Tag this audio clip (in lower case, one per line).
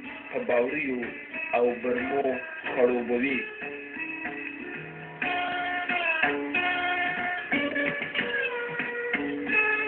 tabla
music
speech